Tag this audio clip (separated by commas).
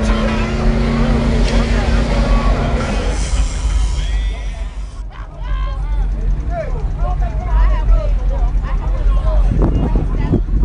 Motor vehicle (road), Vehicle, Speech, Car